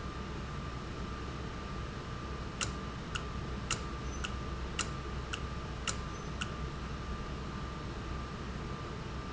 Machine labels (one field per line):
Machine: valve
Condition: normal